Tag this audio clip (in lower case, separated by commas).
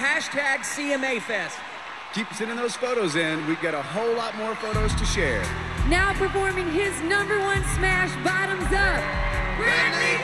exciting music, music, speech